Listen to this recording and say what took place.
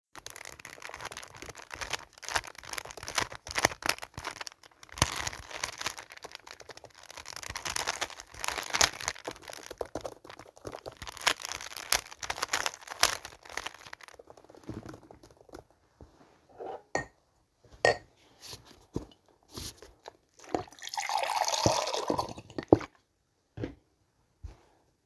I typed on my keyboard while solving a rubics cube, then I stopped to grab for my glass and poured some water in it.